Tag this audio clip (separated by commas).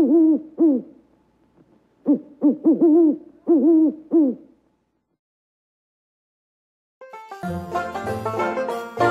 owl hooting